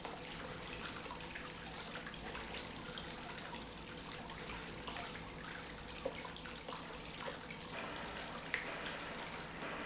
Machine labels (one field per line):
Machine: pump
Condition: normal